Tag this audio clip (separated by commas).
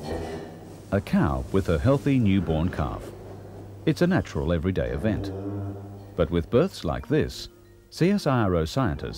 Speech